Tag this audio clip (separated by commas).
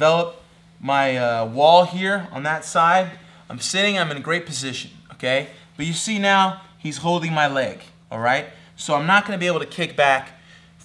Speech